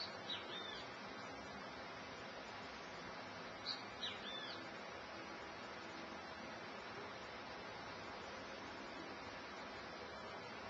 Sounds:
Animal

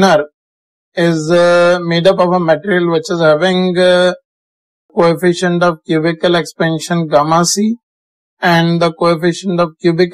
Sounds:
Speech

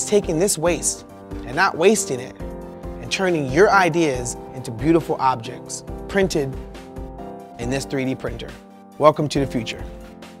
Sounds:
Speech, Music

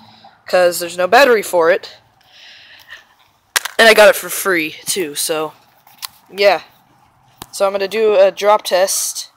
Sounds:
Speech

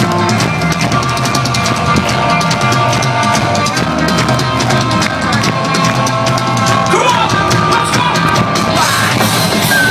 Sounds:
Music, Speech

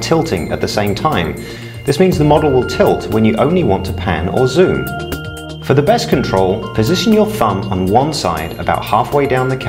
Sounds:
Speech, Music

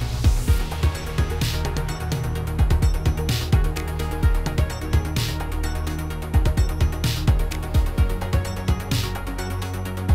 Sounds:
Music

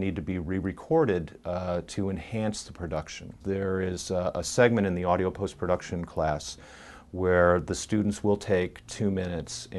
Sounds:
Speech

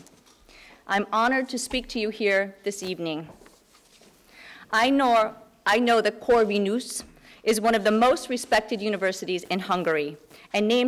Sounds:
Speech

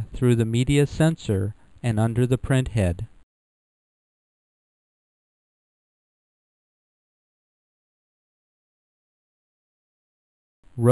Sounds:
Speech

